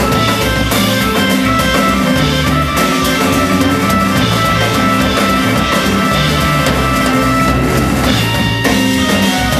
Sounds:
jazz
independent music
music

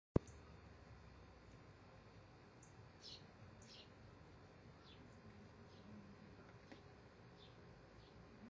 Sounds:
animal

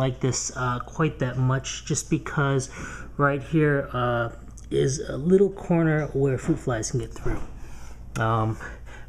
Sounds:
speech

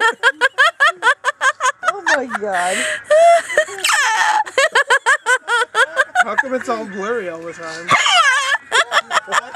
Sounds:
speech
wail

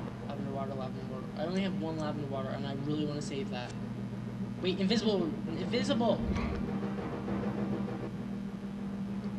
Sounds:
speech

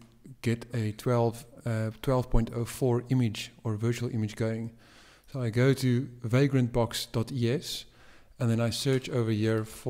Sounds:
speech

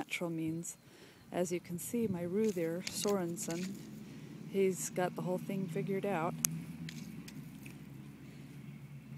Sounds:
speech

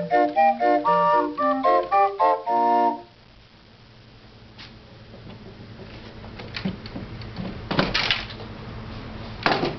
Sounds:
music

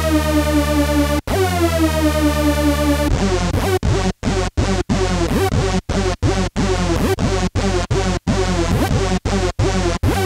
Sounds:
music

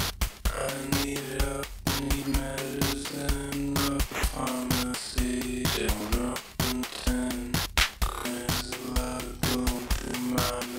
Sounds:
sound effect
music

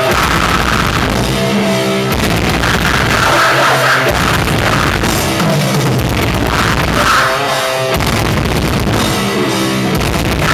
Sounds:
music

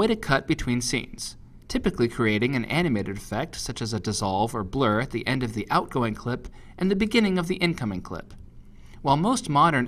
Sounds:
speech

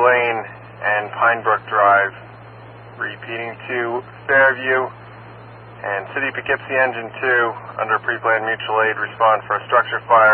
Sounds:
speech

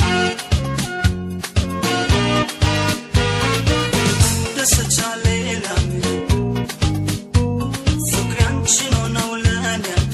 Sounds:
music

